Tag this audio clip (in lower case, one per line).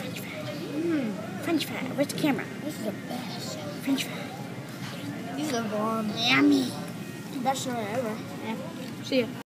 speech